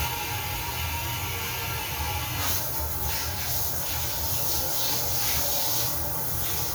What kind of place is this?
restroom